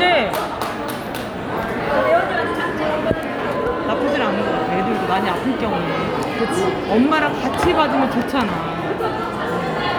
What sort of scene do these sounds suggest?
crowded indoor space